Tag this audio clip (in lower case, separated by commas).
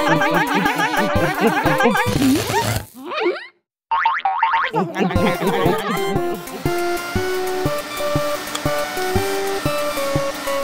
funny music